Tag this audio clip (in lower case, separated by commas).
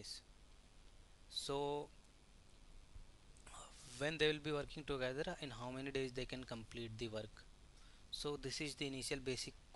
speech